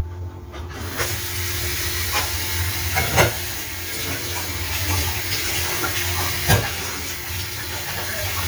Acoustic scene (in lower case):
kitchen